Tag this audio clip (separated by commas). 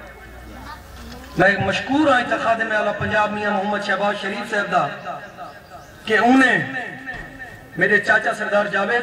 monologue, man speaking, Speech